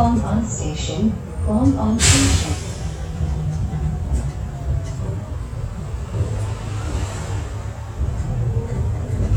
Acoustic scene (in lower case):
bus